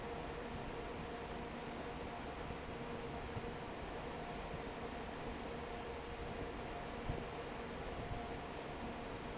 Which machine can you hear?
fan